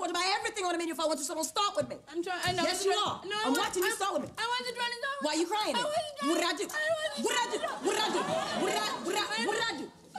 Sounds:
laughter

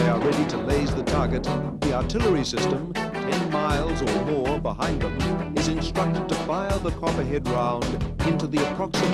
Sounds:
music, speech

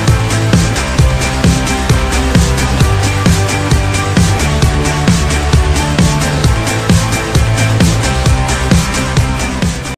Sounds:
music

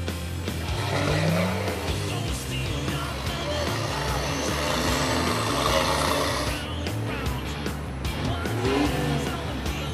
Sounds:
vehicle, music

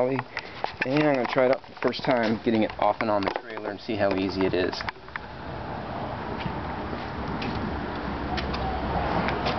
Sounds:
speech

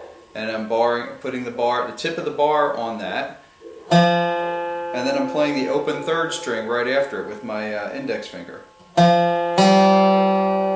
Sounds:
guitar, steel guitar, speech, music, musical instrument, plucked string instrument, blues, strum

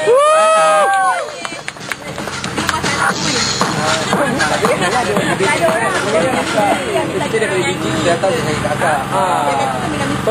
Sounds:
speech, music

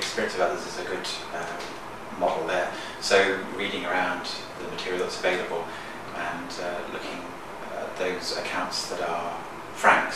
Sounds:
speech

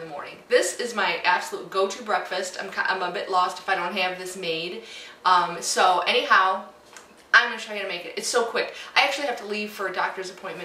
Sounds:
speech

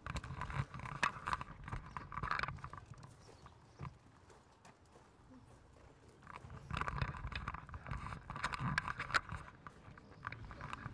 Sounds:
vehicle

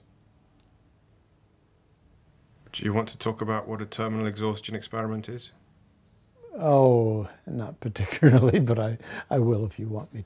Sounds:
speech

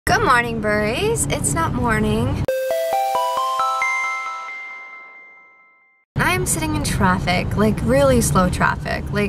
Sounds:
speech, vehicle, car, music

